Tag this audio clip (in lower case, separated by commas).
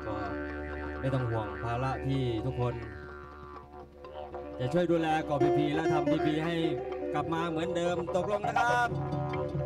speech, music